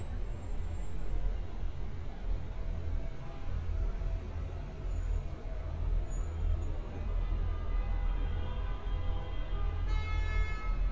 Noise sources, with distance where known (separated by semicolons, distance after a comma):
car horn